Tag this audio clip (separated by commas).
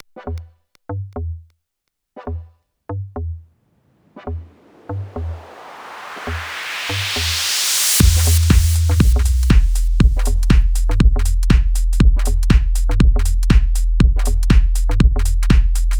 Musical instrument, Bass drum, Drum, Music, Percussion